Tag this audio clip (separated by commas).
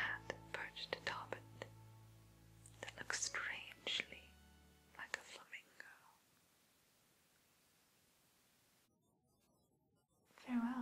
Speech